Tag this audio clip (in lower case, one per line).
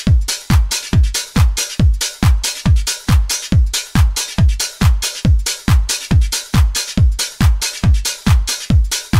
music
dance music